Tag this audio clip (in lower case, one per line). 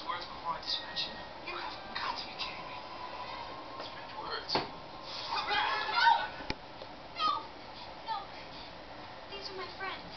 speech